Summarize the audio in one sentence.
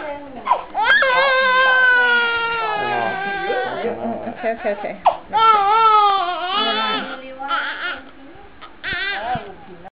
A baby cries and people speak